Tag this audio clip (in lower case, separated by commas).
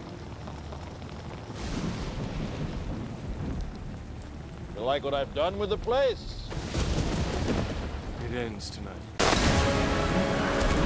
speech, music